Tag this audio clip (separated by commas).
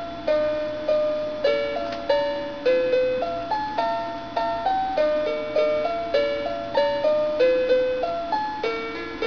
Lullaby, Music